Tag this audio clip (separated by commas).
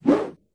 swoosh